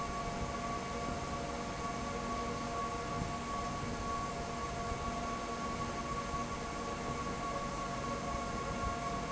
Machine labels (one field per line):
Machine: fan